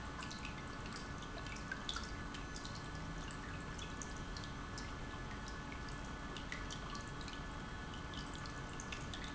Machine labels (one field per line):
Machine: pump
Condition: normal